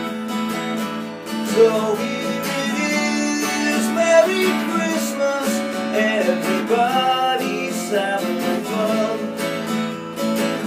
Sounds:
plucked string instrument, acoustic guitar, guitar, music, musical instrument

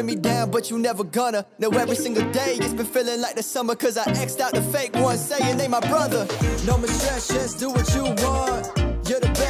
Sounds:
rapping

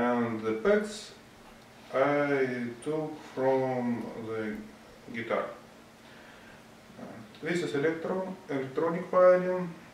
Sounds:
speech

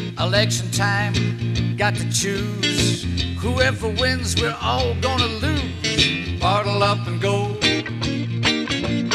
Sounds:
music

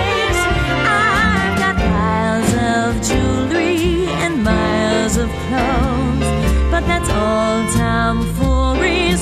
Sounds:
christmas music, music

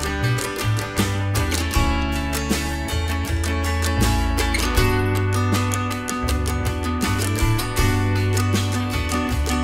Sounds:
soundtrack music, blues, music

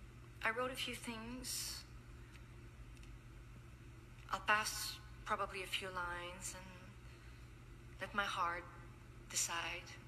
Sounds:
speech, woman speaking, narration

